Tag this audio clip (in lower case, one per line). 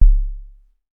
percussion
drum
music
musical instrument
bass drum